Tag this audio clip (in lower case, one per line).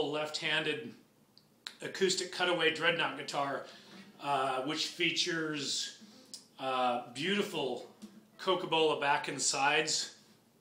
speech